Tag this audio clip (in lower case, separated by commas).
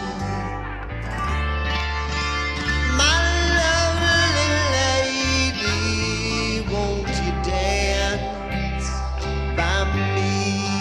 music, psychedelic rock